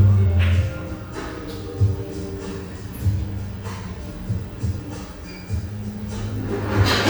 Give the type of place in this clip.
cafe